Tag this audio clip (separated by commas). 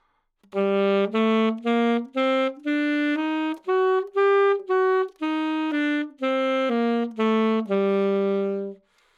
Wind instrument, Musical instrument, Music